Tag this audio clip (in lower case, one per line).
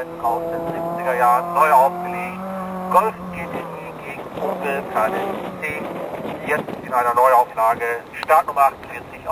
vehicle
motor vehicle (road)
speech
car